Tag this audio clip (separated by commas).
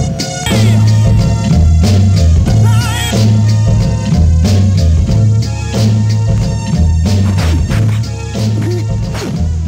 Scratch, Music